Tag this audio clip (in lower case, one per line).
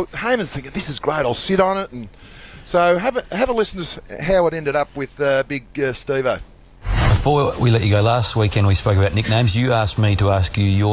speech